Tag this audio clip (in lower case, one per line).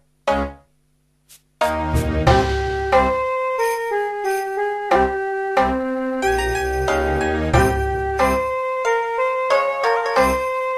music